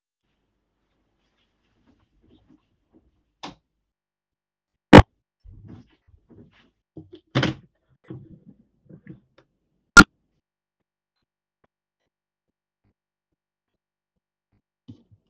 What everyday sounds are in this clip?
footsteps, light switch, window